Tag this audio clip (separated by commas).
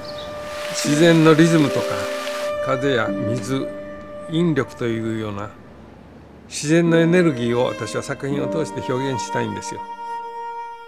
Music, Speech